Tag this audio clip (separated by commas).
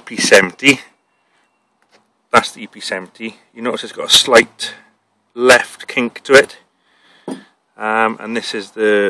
Speech